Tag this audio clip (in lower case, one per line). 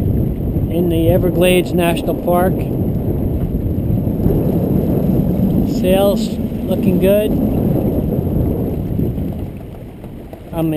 speech